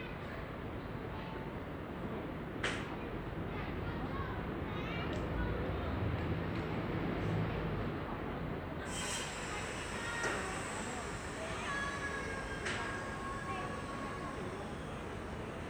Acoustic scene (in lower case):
residential area